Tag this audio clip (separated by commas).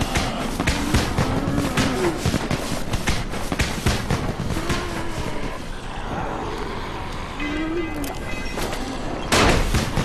outside, urban or man-made